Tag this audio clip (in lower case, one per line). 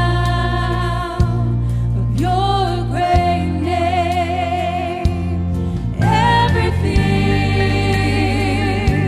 music